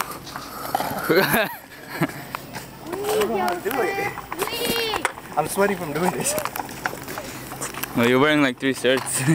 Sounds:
kid speaking, Speech

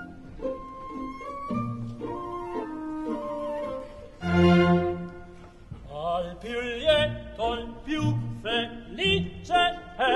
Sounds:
Music, Opera

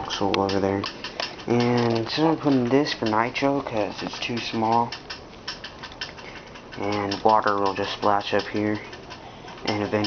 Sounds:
Speech

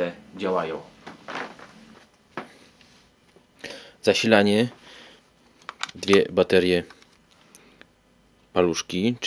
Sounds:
Speech

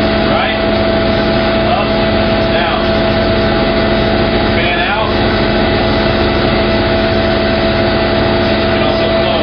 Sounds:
Speech

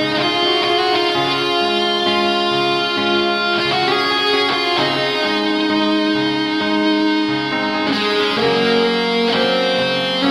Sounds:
Music, Plucked string instrument, Strum, Guitar, Musical instrument, Bass guitar

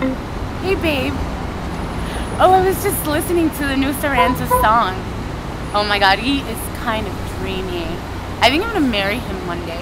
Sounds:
Speech

